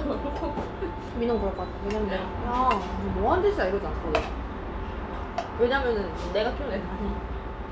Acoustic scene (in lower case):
restaurant